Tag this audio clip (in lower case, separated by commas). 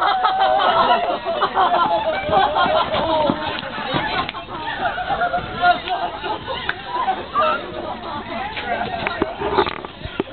speech